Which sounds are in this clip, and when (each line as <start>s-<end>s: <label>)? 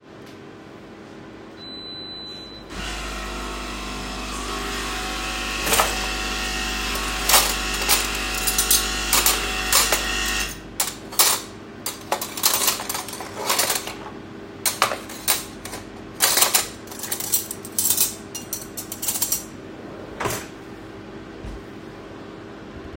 1.6s-10.6s: coffee machine
5.6s-20.5s: cutlery and dishes
20.2s-21.1s: wardrobe or drawer